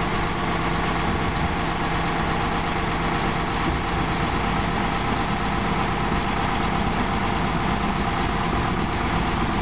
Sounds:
vehicle, truck

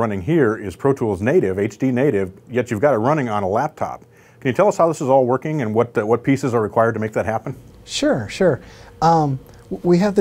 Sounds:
speech

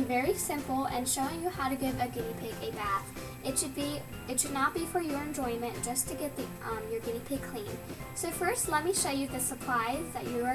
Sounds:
speech, music

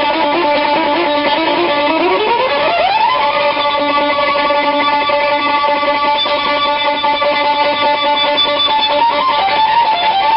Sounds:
violin, musical instrument, music

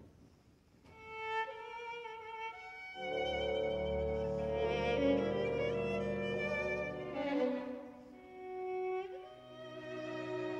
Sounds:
cello, music

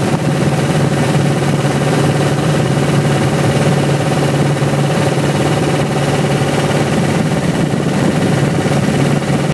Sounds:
speedboat, vehicle

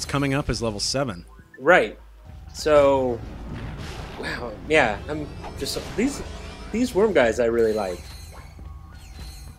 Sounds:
speech

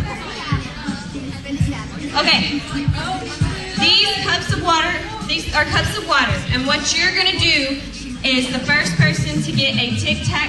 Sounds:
music, speech

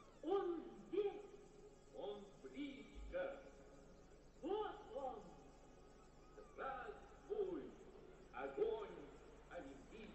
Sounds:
speech

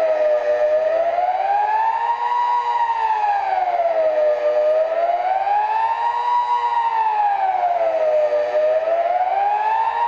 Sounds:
civil defense siren

